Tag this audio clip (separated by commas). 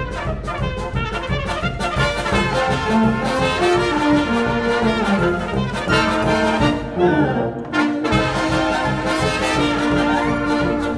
Music